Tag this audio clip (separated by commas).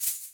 Percussion, Rattle (instrument), Music, Musical instrument